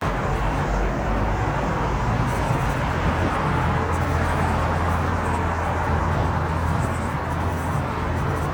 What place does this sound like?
street